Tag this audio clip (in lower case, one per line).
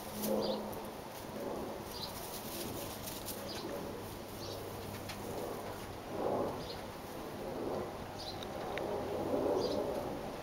bird